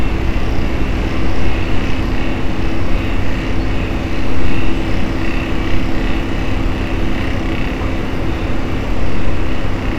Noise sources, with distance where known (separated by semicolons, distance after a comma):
unidentified impact machinery